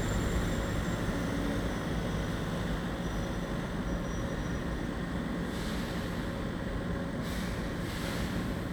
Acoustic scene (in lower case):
residential area